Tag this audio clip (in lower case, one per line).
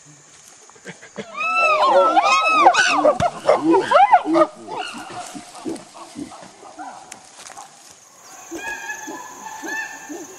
chimpanzee pant-hooting